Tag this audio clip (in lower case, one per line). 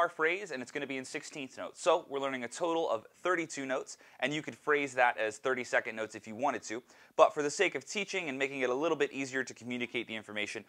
speech